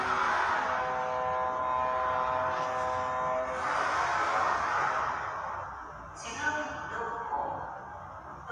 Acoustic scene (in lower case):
subway station